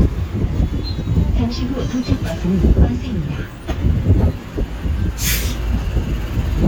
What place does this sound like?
street